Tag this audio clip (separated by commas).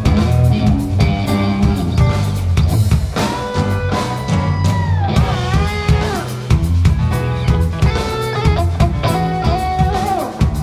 Plucked string instrument, Music, Strum, Electric guitar, Guitar, Musical instrument